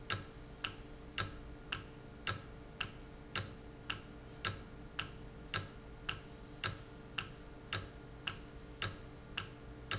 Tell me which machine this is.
valve